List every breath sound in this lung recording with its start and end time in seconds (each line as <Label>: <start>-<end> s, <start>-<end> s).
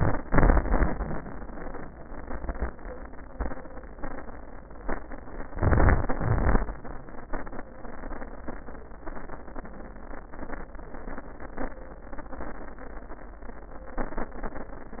Inhalation: 5.51-6.07 s
Exhalation: 6.15-6.61 s